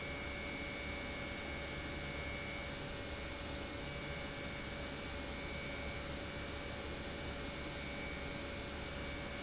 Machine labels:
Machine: pump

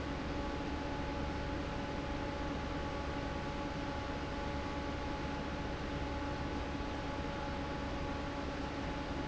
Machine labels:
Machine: fan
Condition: normal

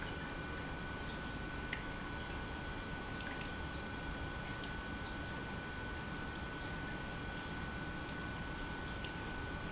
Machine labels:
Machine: pump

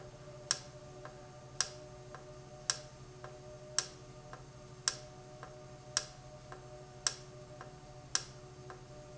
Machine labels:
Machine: valve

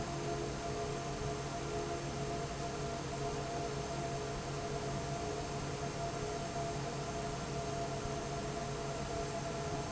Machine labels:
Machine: fan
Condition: normal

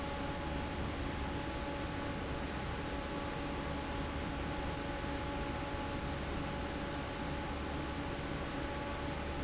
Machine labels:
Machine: fan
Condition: normal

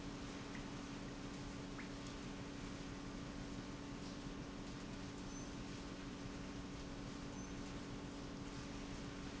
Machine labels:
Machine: pump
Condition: normal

